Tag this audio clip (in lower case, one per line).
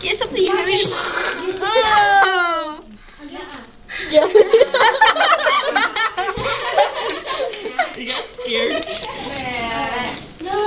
speech
kid speaking